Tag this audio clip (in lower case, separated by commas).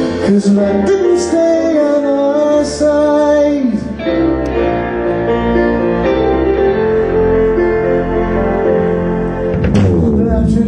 music